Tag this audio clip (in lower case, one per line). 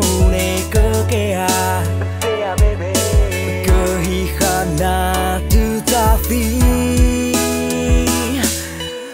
music